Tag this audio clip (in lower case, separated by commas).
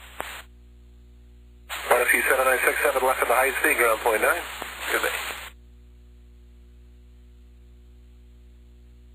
speech